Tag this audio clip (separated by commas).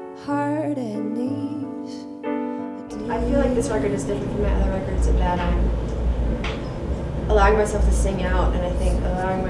Speech, Music